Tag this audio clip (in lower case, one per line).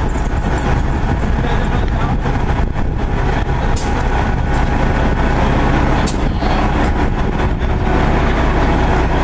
speech